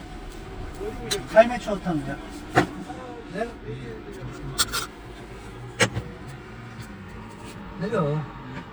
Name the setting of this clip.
car